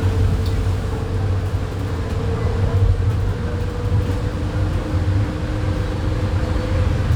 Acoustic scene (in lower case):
bus